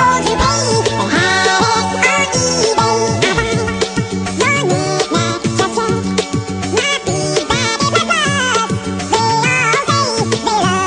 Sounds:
Music

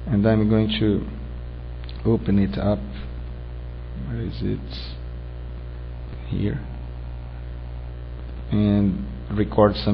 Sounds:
Speech synthesizer, Speech, Male speech

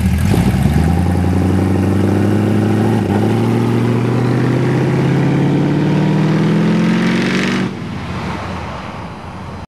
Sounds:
Vehicle, Truck

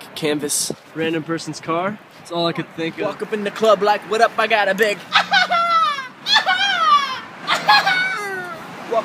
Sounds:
Screaming, Speech, people screaming, outside, urban or man-made

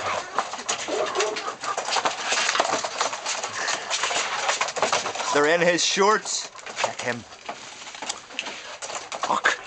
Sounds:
Fowl, Cluck, rooster

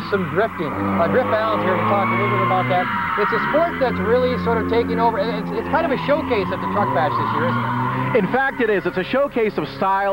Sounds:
Speech, Vehicle, Skidding, Car, auto racing

